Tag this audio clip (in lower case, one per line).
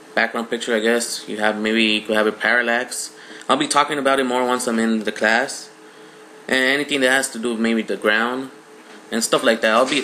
speech